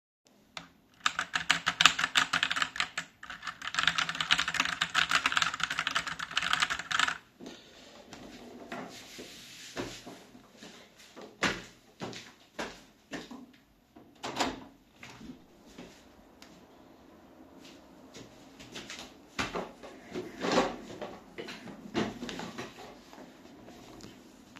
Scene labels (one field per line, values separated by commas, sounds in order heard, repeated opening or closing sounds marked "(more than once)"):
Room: office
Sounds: keyboard typing, footsteps, window, door